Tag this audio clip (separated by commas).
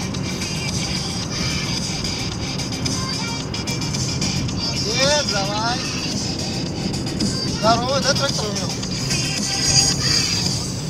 driving snowmobile